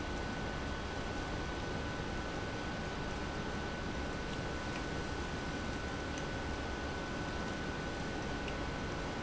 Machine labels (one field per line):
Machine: pump